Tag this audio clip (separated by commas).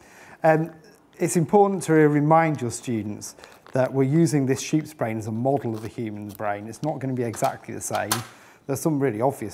Speech